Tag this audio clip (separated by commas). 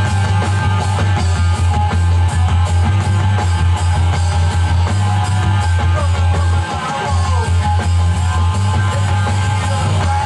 Music